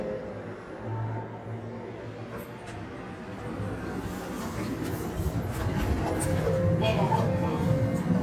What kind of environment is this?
elevator